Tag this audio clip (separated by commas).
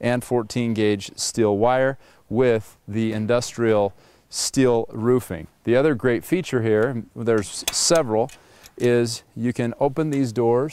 Speech